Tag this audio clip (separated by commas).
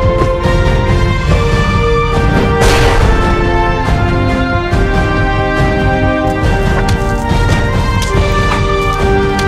Theme music